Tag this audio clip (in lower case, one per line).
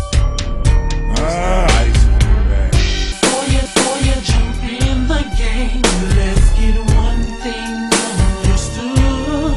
music